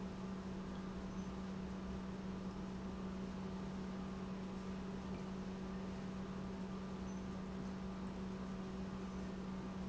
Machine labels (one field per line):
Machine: pump